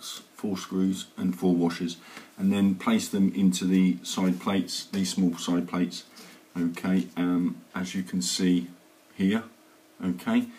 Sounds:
speech

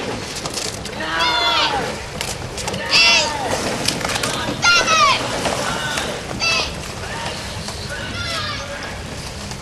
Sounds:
rowboat, wind noise (microphone), wind, water vehicle

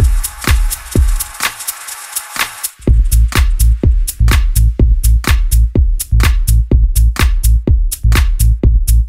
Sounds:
music

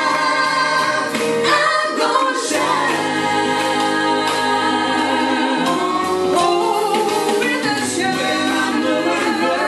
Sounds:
choir, singing, music

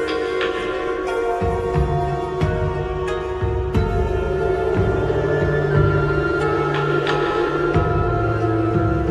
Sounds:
music, video game music

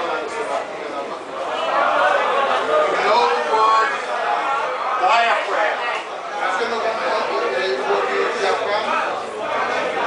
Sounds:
speech

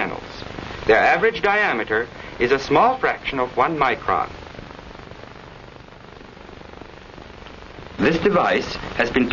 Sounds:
speech, liquid

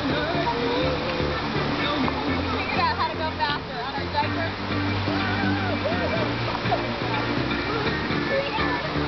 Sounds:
speech, stream, waterfall, gurgling, music

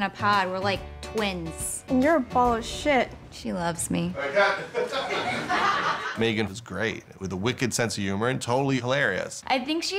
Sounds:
music, speech

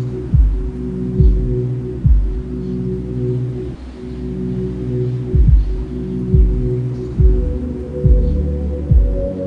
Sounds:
music, dubstep, electronic music

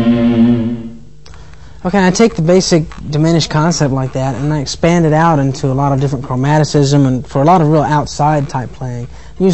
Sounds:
speech, music

